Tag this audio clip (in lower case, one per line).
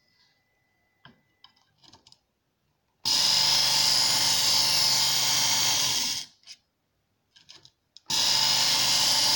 electric grinder grinding